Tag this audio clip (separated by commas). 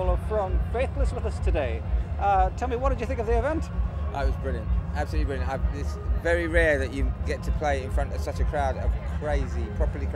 Speech, Music